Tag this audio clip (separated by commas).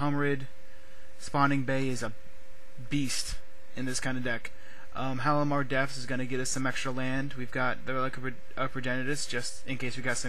Speech, Radio